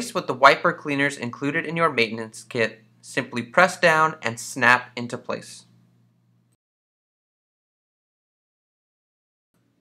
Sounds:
Speech

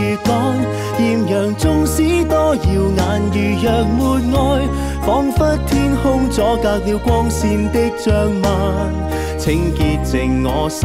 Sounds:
Music

